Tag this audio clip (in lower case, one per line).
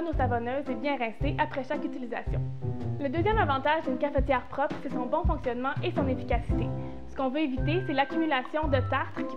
speech
music